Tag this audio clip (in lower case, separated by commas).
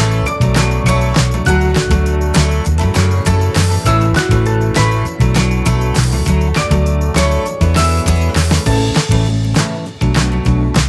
music